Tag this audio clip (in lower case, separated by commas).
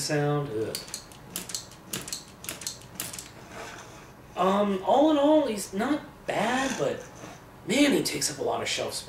inside a small room, speech